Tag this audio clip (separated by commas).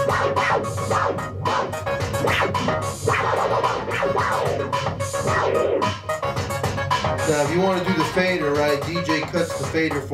disc scratching